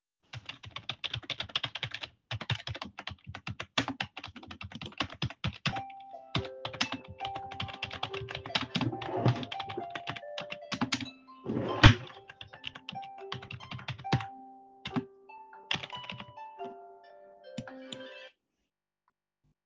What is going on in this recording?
Typing on keyboard, phone starts ringing, drawer is openend and closed